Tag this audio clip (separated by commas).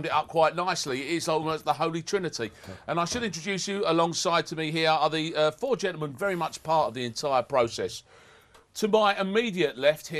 Speech